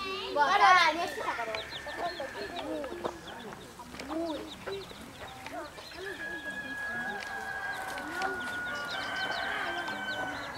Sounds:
chicken, fowl, cluck, crowing

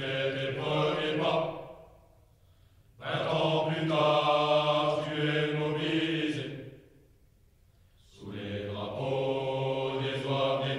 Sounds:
mantra

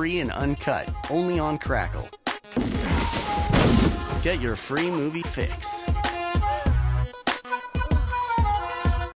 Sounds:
music, speech

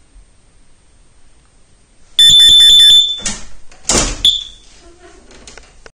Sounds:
smoke alarm

